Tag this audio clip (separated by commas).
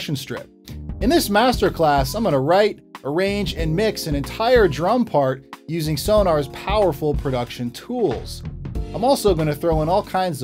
Percussion, Snare drum, Drum, Drum kit, Rimshot, Bass drum